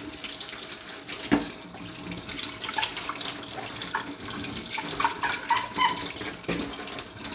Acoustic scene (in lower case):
kitchen